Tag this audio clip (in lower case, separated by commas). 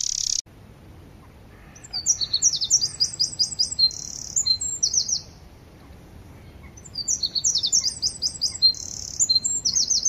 bird call, bird, bird chirping, tweet